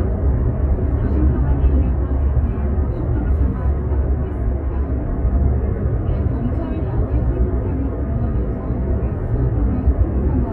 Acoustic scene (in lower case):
car